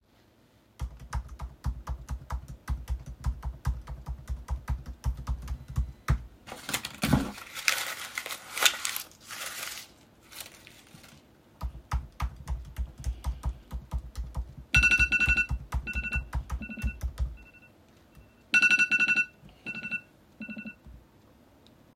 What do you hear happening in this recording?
I was typing on the keyboard and stopped to fold a paper. Then I continued to type before my alarm went off